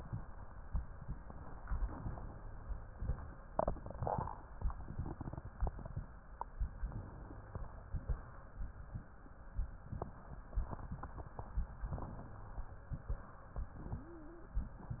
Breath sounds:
Inhalation: 6.81-7.59 s, 11.90-12.68 s
Exhalation: 7.59-8.27 s, 12.68-13.28 s

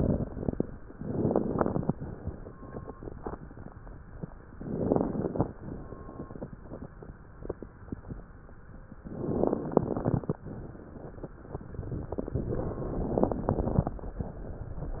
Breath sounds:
Inhalation: 0.00-0.66 s, 0.93-1.92 s, 4.52-5.51 s, 9.09-10.39 s, 12.37-13.93 s
Exhalation: 1.92-3.78 s, 5.58-7.45 s, 10.40-12.31 s, 14.01-15.00 s
Crackles: 0.00-0.66 s, 0.91-1.91 s, 4.49-5.50 s, 9.08-10.38 s, 13.12-13.93 s

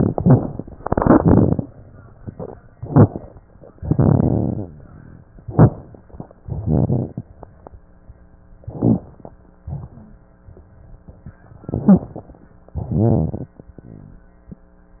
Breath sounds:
Inhalation: 0.00-0.55 s, 2.79-3.28 s, 5.48-5.98 s, 8.67-9.32 s, 11.65-12.22 s
Exhalation: 0.80-1.58 s, 3.81-4.67 s, 6.45-7.31 s, 9.71-10.13 s, 12.85-13.53 s
Crackles: 0.00-0.55 s, 0.80-1.58 s, 2.79-3.28 s, 3.81-4.67 s, 5.48-5.98 s, 6.45-7.31 s, 8.67-9.32 s, 9.71-10.13 s, 11.65-12.22 s, 12.85-13.53 s

